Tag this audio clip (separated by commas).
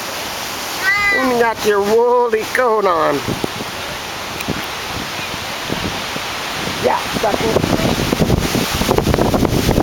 kid speaking, Speech